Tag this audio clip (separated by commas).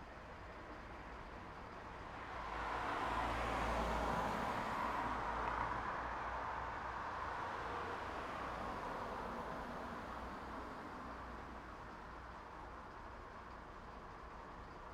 Motor vehicle (road), Traffic noise, Vehicle